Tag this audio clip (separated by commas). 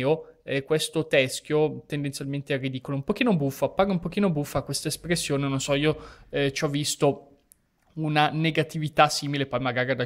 Speech